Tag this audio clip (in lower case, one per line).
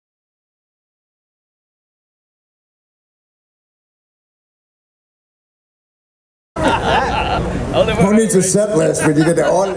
speech